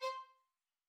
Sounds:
Music, Musical instrument, Bowed string instrument

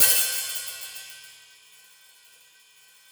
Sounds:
Hi-hat, Musical instrument, Music, Percussion, Cymbal

